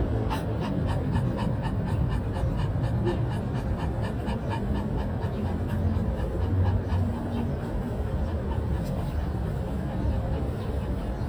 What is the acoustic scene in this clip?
residential area